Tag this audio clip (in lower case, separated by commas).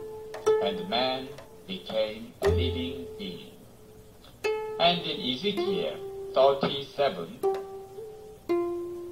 speech, music